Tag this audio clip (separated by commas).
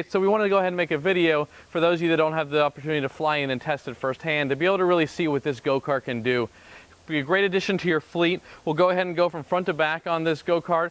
Speech